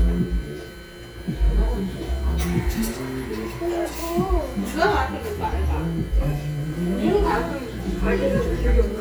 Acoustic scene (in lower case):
restaurant